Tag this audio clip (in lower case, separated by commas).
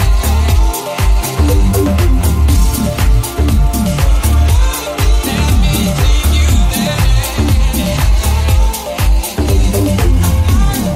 disco, music